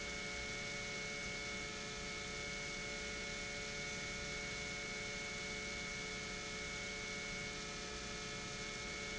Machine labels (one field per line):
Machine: pump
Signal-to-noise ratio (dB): 6 dB